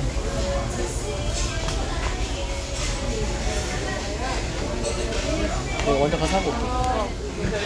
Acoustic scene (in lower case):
restaurant